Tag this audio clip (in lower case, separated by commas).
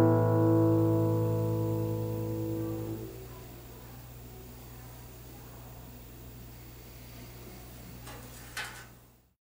musical instrument, acoustic guitar, plucked string instrument, guitar, music